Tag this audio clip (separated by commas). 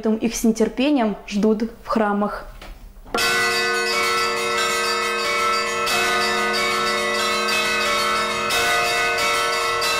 wind chime